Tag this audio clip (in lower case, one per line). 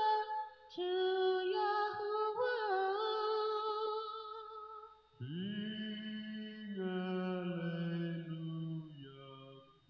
female singing
male singing